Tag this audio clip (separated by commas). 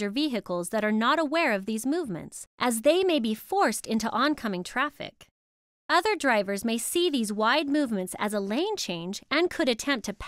Speech